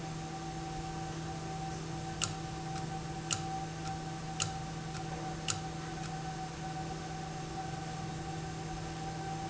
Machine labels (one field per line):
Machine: valve